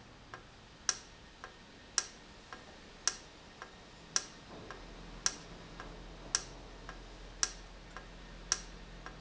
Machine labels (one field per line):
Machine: valve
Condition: normal